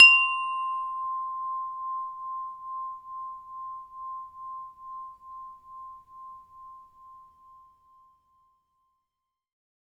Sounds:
Wind chime, Chime, Bell

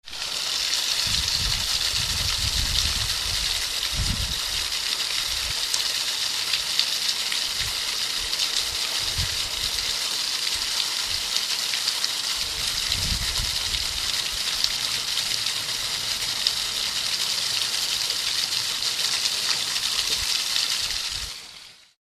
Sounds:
Thunderstorm, Thunder

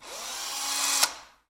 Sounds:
Power tool, Drill, Tools

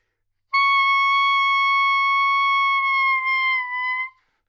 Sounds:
woodwind instrument, Musical instrument, Music

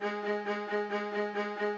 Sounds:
Bowed string instrument, Musical instrument, Music

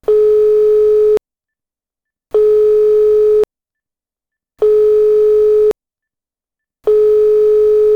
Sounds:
Alarm, Telephone

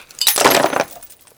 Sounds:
Shatter, Glass

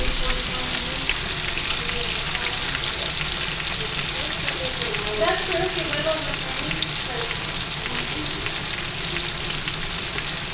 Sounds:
Domestic sounds, Frying (food)

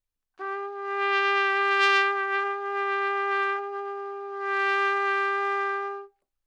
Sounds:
Music, Musical instrument, Trumpet, Brass instrument

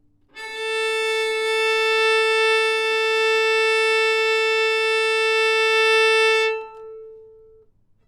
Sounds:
Bowed string instrument, Music, Musical instrument

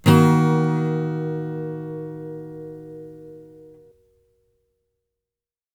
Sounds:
Guitar, Acoustic guitar, Strum, Plucked string instrument, Music, Musical instrument

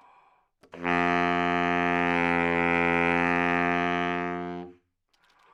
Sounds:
woodwind instrument, Music, Musical instrument

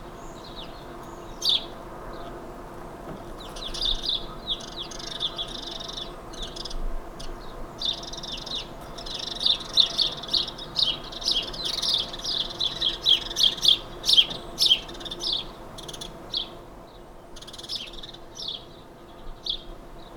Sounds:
Animal, Bird vocalization, Bird, Wild animals

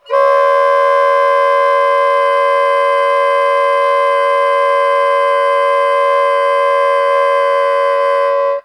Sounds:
Music, Musical instrument, woodwind instrument

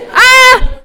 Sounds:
Screaming, Human voice

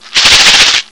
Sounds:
Percussion, Rattle (instrument), Musical instrument, Music

